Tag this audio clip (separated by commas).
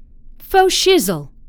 Female speech, Speech, Human voice